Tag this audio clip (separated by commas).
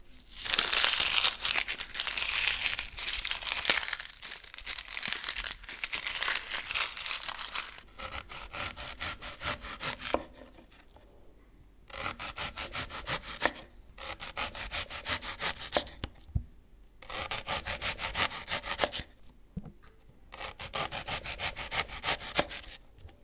home sounds